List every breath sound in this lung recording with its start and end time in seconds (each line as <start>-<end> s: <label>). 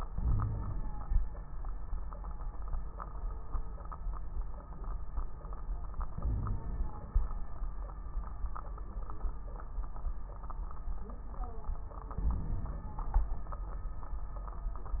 0.12-1.13 s: inhalation
0.18-0.73 s: wheeze
6.13-7.23 s: inhalation
6.22-6.65 s: wheeze
12.18-13.30 s: inhalation
12.18-13.30 s: crackles